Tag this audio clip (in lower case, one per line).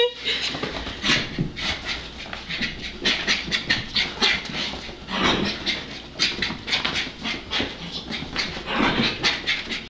bow-wow